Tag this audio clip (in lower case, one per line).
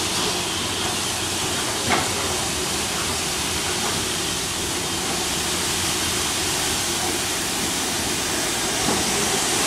train wagon
vehicle
rail transport
train